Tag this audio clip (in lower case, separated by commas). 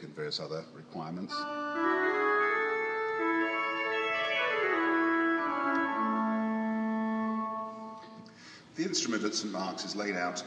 organ, music, piano, speech, musical instrument, keyboard (musical)